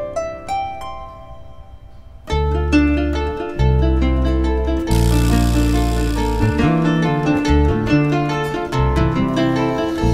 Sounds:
Music

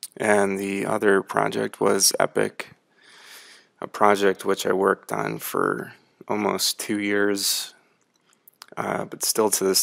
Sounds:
Speech

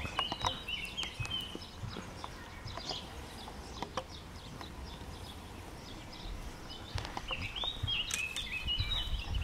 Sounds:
Animal

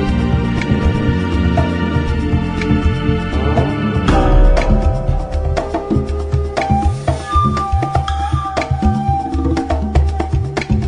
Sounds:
Scary music, Music

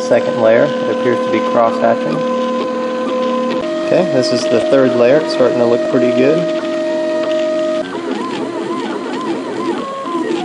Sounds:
Speech, Printer

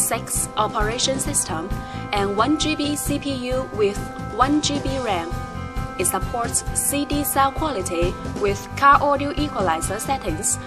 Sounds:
Speech, Music

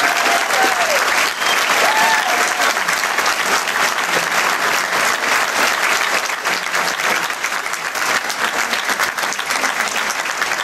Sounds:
Applause, people clapping

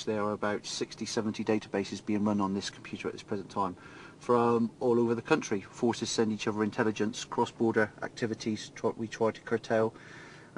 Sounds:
Speech

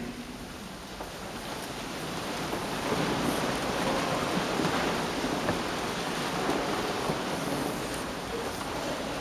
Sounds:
Crowd

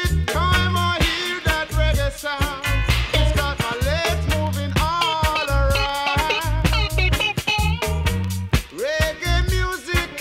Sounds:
Reggae, Music

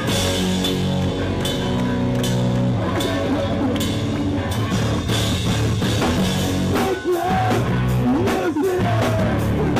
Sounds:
Rock music, Speech, Music

